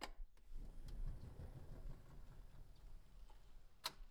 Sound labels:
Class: window; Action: opening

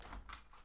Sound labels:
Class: window; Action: opening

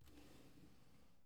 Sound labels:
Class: drawer; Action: opening; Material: wooden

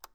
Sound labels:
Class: switch; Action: being turned off; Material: plastic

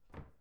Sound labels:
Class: cupboard; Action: closing; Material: wooden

